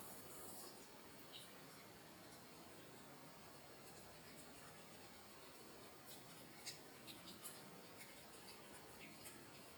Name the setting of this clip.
restroom